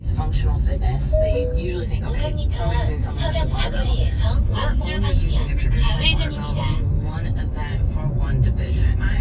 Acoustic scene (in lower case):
car